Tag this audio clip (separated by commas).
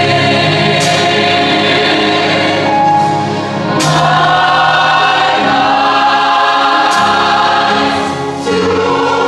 Choir, Music